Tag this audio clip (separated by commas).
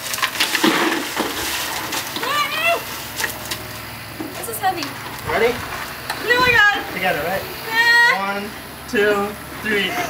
Speech